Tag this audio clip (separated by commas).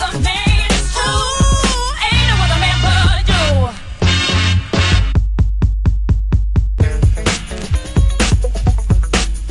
Music